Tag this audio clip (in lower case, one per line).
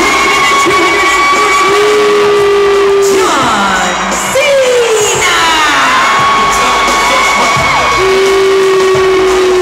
music
cheering